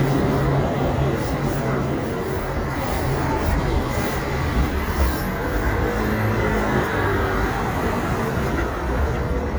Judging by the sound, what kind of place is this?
street